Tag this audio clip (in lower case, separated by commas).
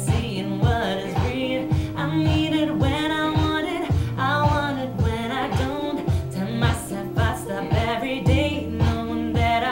music, female singing